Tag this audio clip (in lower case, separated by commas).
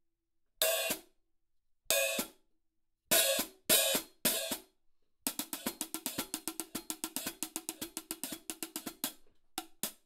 cymbal, music, musical instrument, playing cymbal, hi-hat, inside a small room